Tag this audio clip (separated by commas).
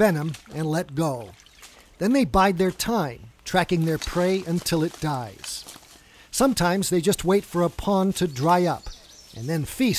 Speech, outside, rural or natural